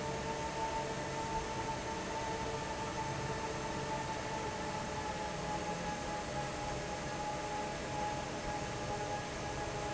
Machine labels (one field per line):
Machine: fan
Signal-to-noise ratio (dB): -6 dB